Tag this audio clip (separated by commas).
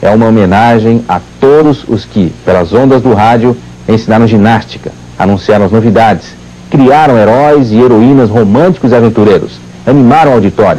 Speech